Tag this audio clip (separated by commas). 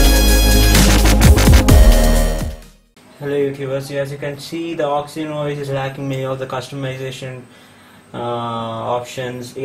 Dubstep